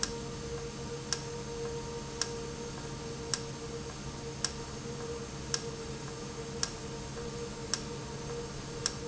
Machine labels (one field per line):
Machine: valve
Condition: normal